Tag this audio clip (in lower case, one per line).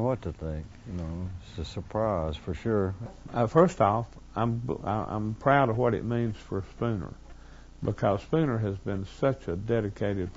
speech